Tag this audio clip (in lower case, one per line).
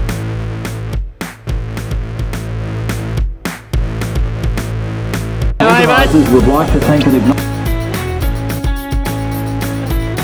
music
speech